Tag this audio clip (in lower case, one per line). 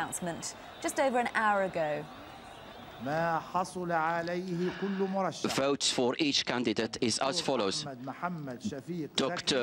speech